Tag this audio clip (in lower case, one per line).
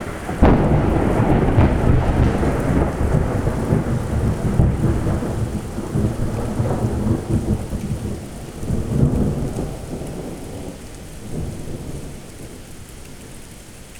thunder
thunderstorm
rain
water